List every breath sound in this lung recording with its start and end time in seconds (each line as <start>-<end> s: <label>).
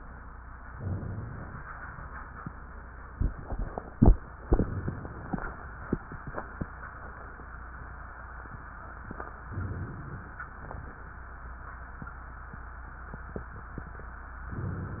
0.74-1.58 s: inhalation
9.54-10.44 s: inhalation
10.59-11.03 s: exhalation